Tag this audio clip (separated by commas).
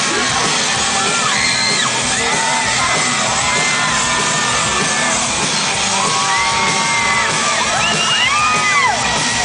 Music